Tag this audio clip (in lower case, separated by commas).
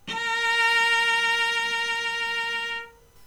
bowed string instrument, music, musical instrument